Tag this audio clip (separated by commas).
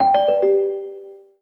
Telephone, Ringtone, Alarm